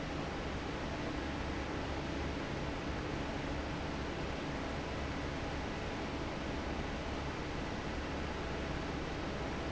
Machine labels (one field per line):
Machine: fan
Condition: normal